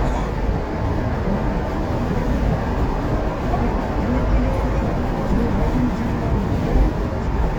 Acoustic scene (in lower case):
car